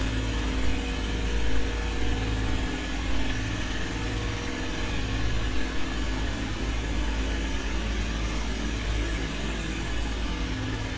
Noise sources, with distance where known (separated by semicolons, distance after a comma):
jackhammer, near